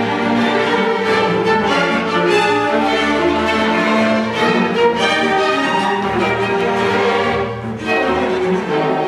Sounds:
musical instrument, orchestra, music, fiddle

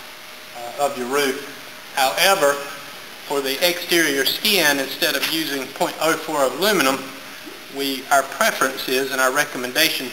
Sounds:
speech

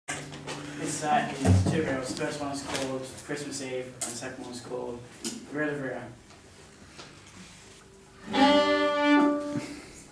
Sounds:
fiddle, speech, bowed string instrument, music

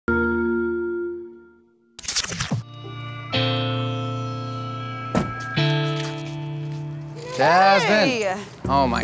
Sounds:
speech, outside, urban or man-made, music

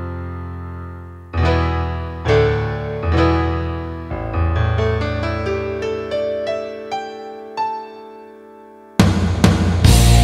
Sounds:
guitar, heavy metal, progressive rock, music, rock music

